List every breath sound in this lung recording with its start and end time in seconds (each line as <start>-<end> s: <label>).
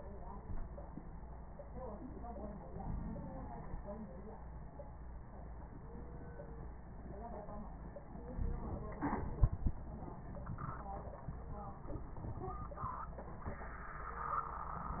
2.72-3.83 s: inhalation
2.72-3.83 s: crackles
8.41-9.77 s: inhalation
8.41-9.77 s: crackles